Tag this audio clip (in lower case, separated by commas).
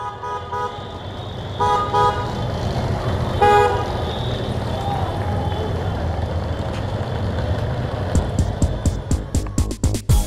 speech, music, outside, urban or man-made